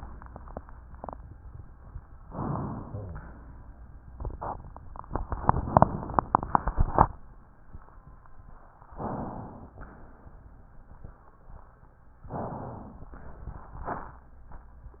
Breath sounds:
2.26-3.11 s: inhalation
8.92-9.72 s: inhalation
9.81-10.61 s: exhalation
12.35-13.15 s: inhalation
13.15-14.18 s: exhalation

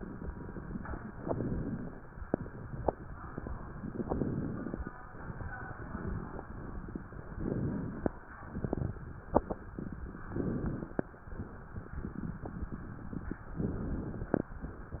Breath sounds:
1.04-1.96 s: inhalation
1.04-1.96 s: crackles
4.00-4.92 s: inhalation
4.00-4.92 s: crackles
7.36-8.20 s: inhalation
7.36-8.20 s: crackles
10.34-11.18 s: inhalation
10.34-11.18 s: crackles
13.60-14.44 s: inhalation
13.60-14.44 s: crackles

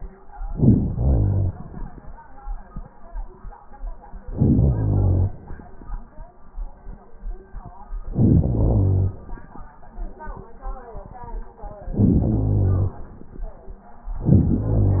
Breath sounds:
0.32-0.93 s: inhalation
0.94-2.18 s: exhalation
4.18-4.66 s: crackles
4.20-4.68 s: inhalation
4.66-6.36 s: exhalation
8.05-8.51 s: inhalation
8.05-8.51 s: crackles
8.50-9.73 s: exhalation
11.95-12.51 s: inhalation
12.52-13.87 s: exhalation

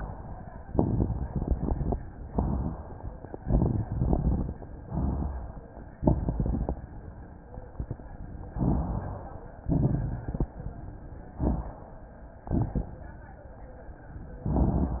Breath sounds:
0.67-1.96 s: inhalation
0.67-1.96 s: crackles
2.28-3.13 s: exhalation
3.38-4.57 s: inhalation
3.38-4.57 s: crackles
4.82-5.67 s: exhalation
5.98-6.83 s: inhalation
5.98-6.83 s: crackles
8.50-9.36 s: inhalation
8.50-9.36 s: crackles
9.66-10.51 s: exhalation
9.66-10.51 s: crackles
11.38-11.92 s: crackles
11.38-12.18 s: inhalation
12.47-13.00 s: exhalation
12.47-13.00 s: crackles

